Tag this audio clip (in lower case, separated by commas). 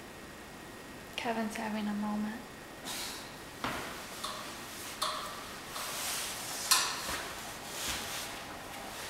speech